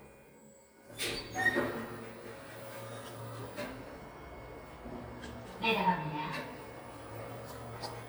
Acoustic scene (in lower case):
elevator